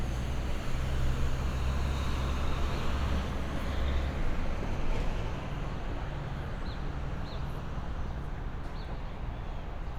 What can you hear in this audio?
engine of unclear size